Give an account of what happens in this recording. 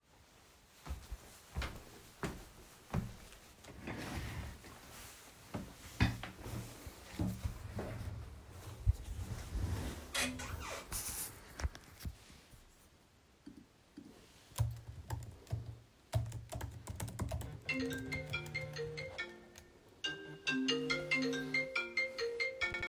I sit at my desk and start typing on my laptop keyboard. While I am typing, my phone begins ringing on the desk. I stop typing and pick up the phone.